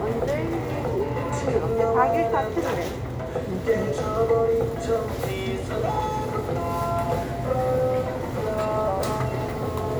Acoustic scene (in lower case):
crowded indoor space